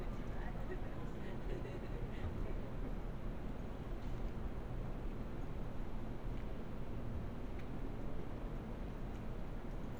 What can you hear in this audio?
person or small group talking